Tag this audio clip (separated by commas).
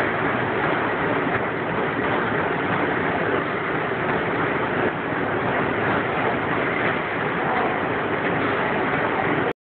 inside a large room or hall, Run